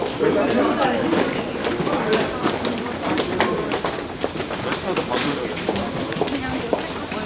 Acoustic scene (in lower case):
subway station